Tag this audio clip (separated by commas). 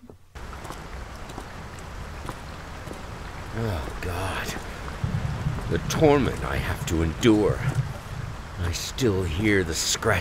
Raindrop, Rain